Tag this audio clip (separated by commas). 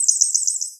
Animal, bird song, Bird, Chirp, Wild animals